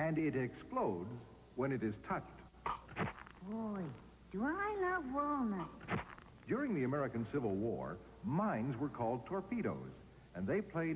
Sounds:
speech

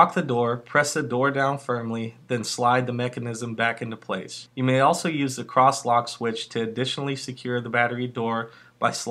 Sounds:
speech

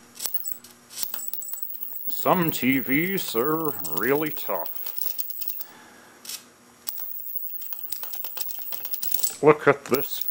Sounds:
speech

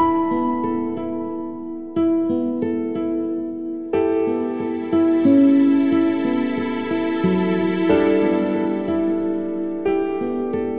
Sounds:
music

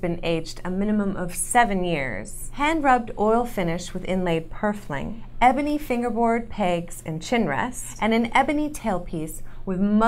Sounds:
speech

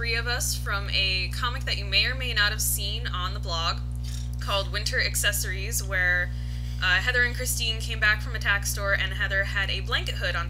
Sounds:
speech

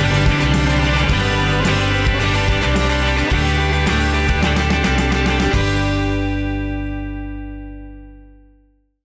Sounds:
music

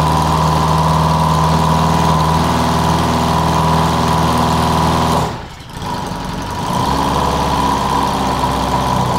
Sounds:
idling, engine, medium engine (mid frequency)

